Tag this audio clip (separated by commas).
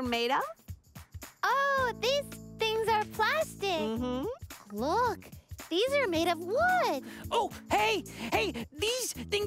Speech